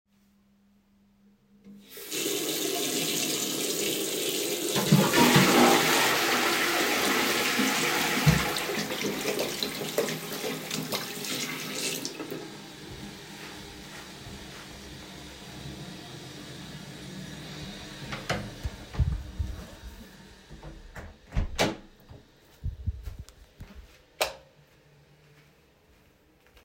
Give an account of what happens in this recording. I flush the toilet then wash my hands. I exit the toilet, close the door and turn the light off.